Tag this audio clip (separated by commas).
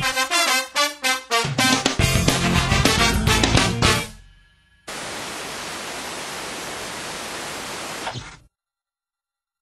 Pink noise, Music